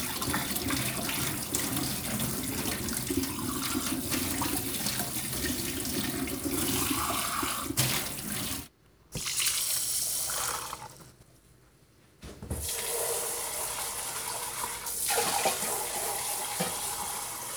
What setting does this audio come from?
kitchen